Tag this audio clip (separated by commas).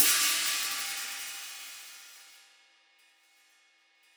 Hi-hat, Music, Cymbal, Percussion, Musical instrument